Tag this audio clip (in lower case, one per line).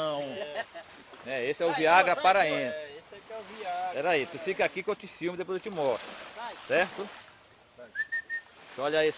speech